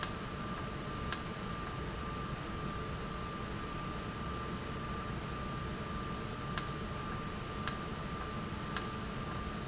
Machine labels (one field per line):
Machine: valve